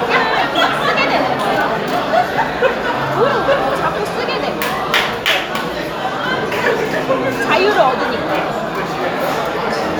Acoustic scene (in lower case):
restaurant